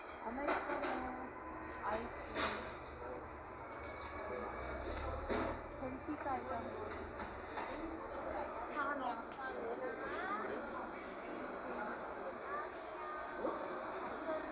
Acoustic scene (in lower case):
cafe